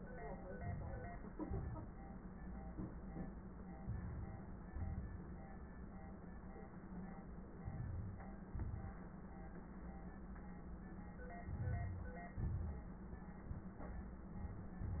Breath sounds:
Inhalation: 0.39-1.32 s, 3.81-4.71 s, 7.61-8.47 s, 11.44-12.34 s
Exhalation: 1.32-2.31 s, 4.71-5.75 s, 8.48-9.21 s, 12.33-12.97 s
Crackles: 1.32-2.31 s, 3.81-4.71 s, 7.61-8.47 s, 11.42-12.30 s, 12.33-12.97 s

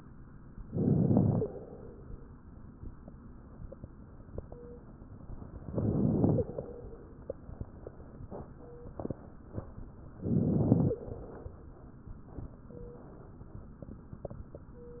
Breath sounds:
Inhalation: 0.64-1.49 s, 5.65-6.42 s, 10.21-10.97 s
Exhalation: 1.41-2.39 s, 6.41-7.12 s, 11.00-11.99 s
Stridor: 1.39-1.48 s, 6.34-6.44 s, 10.88-10.97 s
Crackles: 0.64-1.49 s, 5.65-6.42 s, 10.21-10.97 s

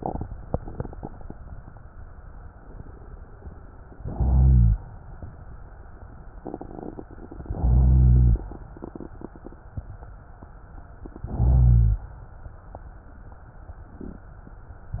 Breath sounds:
Inhalation: 3.98-4.89 s, 7.56-8.47 s, 11.18-12.08 s

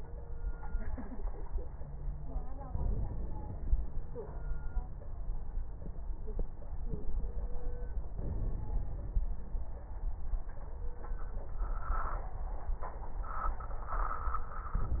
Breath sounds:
Inhalation: 2.66-3.71 s, 8.14-9.19 s, 14.75-15.00 s
Crackles: 2.66-3.71 s

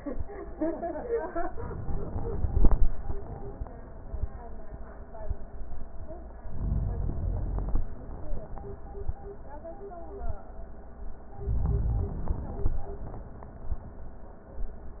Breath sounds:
Inhalation: 1.54-2.94 s, 6.50-7.91 s, 11.40-12.80 s

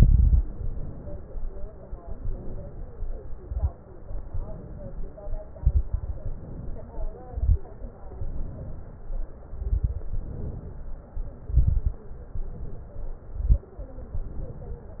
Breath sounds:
Inhalation: 0.46-1.42 s, 2.07-3.04 s, 4.24-5.15 s, 6.33-7.16 s, 7.98-9.16 s, 10.15-10.98 s, 12.09-13.19 s, 13.87-15.00 s
Exhalation: 0.00-0.41 s, 5.62-6.29 s, 7.32-7.62 s, 9.56-10.05 s, 11.44-12.03 s, 13.30-13.74 s
Crackles: 0.00-0.41 s, 3.34-3.74 s, 5.62-6.29 s, 7.32-7.62 s, 9.56-10.05 s, 11.44-12.03 s, 13.30-13.74 s

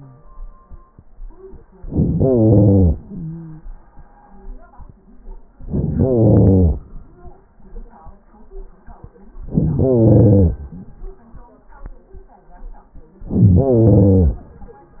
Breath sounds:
Inhalation: 1.83-2.93 s, 5.61-6.85 s, 9.35-10.60 s, 13.27-14.51 s
Exhalation: 2.93-3.81 s
Stridor: 2.93-3.81 s

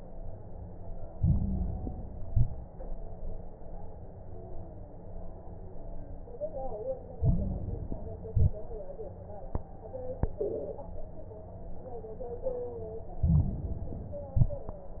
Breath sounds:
Inhalation: 1.12-2.20 s, 7.14-8.23 s, 13.21-14.29 s
Exhalation: 2.22-2.71 s, 8.27-8.76 s, 14.33-14.82 s
Crackles: 1.12-2.20 s, 2.22-2.71 s, 7.14-8.23 s, 8.27-8.76 s, 13.21-14.29 s, 14.33-14.82 s

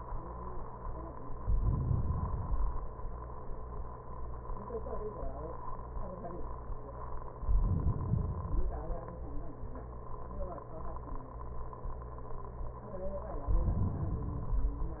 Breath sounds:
Inhalation: 1.37-2.51 s, 7.40-8.43 s, 13.40-14.34 s
Exhalation: 2.48-3.51 s, 8.46-9.32 s, 14.35-15.00 s

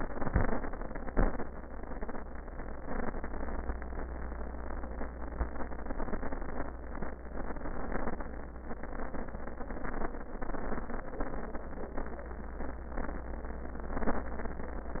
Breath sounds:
Inhalation: 0.00-0.63 s
Exhalation: 1.13-1.48 s

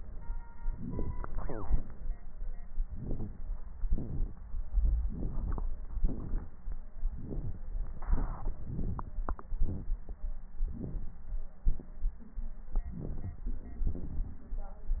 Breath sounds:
Inhalation: 0.67-1.08 s, 2.85-3.32 s, 5.03-5.62 s, 7.10-7.61 s, 8.63-9.15 s, 10.72-11.21 s, 12.96-13.40 s
Exhalation: 1.41-1.84 s, 3.85-4.33 s, 6.00-6.51 s, 8.14-8.65 s, 9.60-9.93 s, 11.63-11.97 s, 13.85-14.50 s

